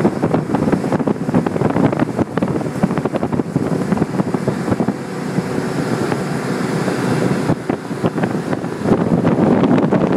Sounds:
motorboat
speedboat acceleration
vehicle

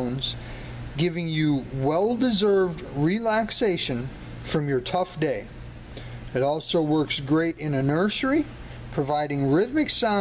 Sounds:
speech

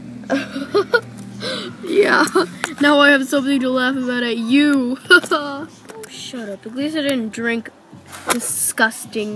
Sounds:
speech

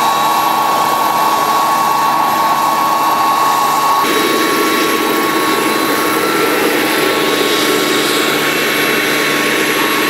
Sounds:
helicopter
aircraft

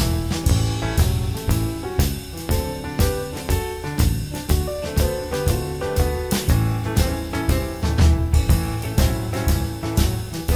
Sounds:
music

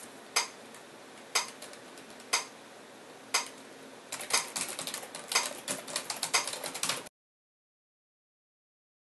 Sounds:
typing on typewriter

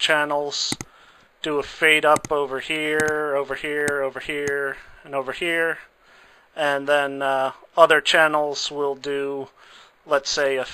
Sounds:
speech

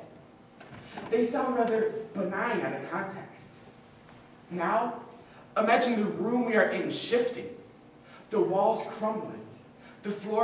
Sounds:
speech
male speech
monologue

